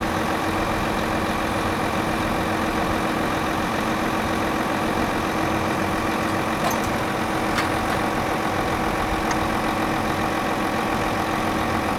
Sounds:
motor vehicle (road)
truck
vehicle

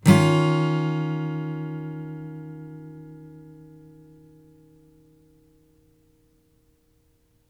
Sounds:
guitar
musical instrument
strum
plucked string instrument
music
acoustic guitar

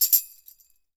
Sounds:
music
tambourine
musical instrument
percussion

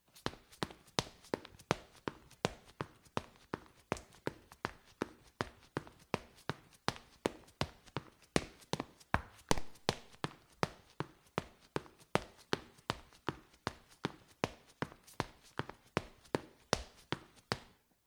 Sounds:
run

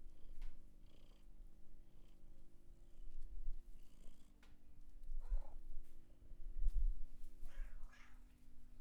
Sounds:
pets
meow
cat
animal
purr

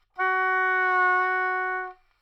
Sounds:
music
musical instrument
wind instrument

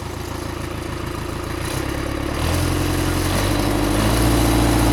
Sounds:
accelerating
engine

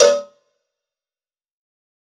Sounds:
bell
cowbell

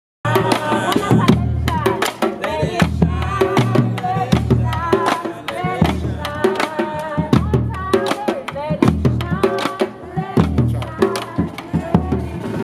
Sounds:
singing
human voice

